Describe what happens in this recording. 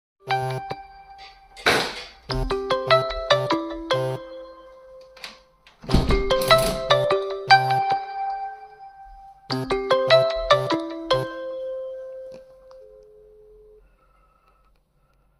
The phone rang and I stood up to close the window.